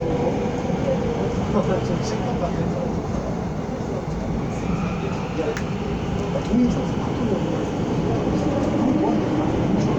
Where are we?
on a subway train